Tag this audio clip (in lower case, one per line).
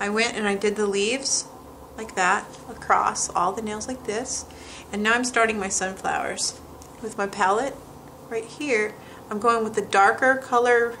speech